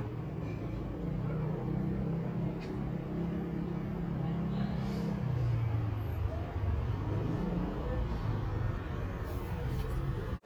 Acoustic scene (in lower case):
residential area